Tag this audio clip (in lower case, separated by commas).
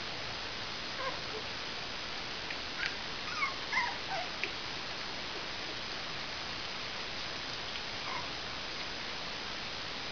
animal, pets, inside a small room, dog